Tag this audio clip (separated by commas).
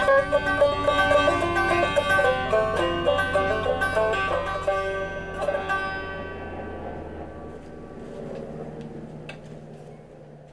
Music, Plucked string instrument, Banjo, Musical instrument